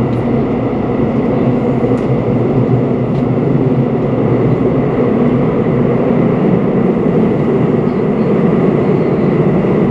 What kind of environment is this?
subway train